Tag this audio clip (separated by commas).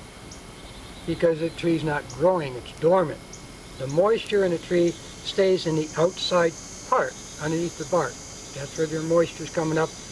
Speech